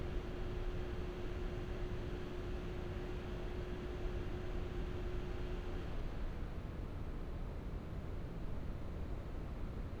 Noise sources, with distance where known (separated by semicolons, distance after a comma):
engine of unclear size